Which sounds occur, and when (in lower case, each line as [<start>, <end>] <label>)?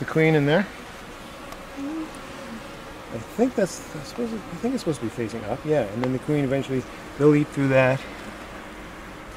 [0.00, 0.63] man speaking
[0.00, 9.35] buzz
[0.00, 9.35] wind
[1.44, 1.55] tick
[1.72, 2.08] human sounds
[2.32, 2.60] human sounds
[3.12, 3.78] man speaking
[3.93, 6.80] man speaking
[4.04, 4.15] tick
[5.99, 6.10] tick
[7.15, 7.25] tick
[7.18, 7.95] man speaking